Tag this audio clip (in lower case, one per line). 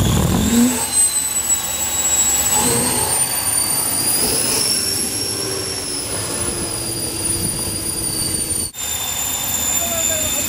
vehicle
speech